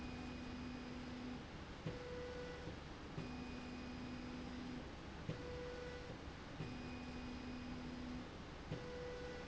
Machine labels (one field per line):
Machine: slide rail